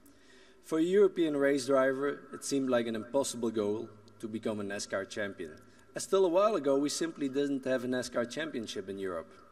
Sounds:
speech, male speech

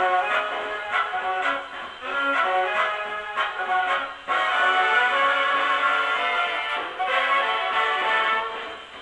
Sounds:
music, inside a small room

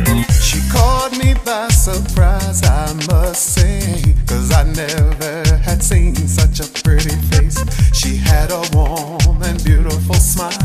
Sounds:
music

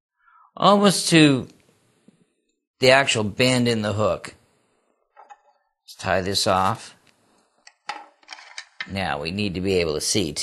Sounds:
speech

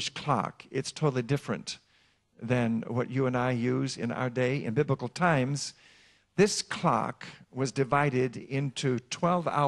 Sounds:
speech

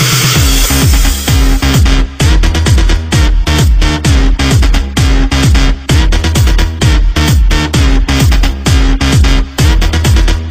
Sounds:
music, electronica

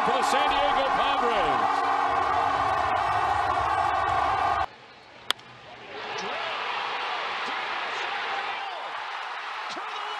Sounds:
speech

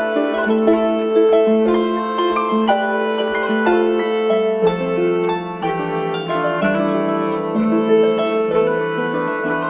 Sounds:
pizzicato, harp

